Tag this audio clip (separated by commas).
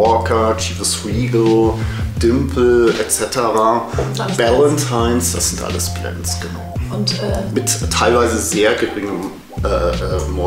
Music, Speech